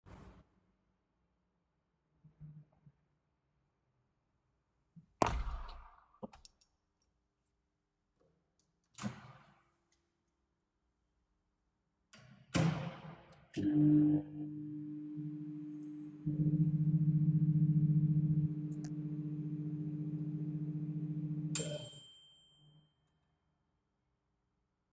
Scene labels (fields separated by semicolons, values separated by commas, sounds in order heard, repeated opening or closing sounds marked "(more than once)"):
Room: kitchen; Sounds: door, window, microwave